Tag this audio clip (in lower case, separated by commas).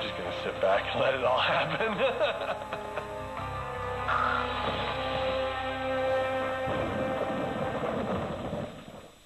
speech, music, inside a small room